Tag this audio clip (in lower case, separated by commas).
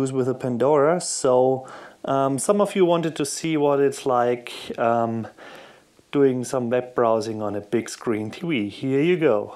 speech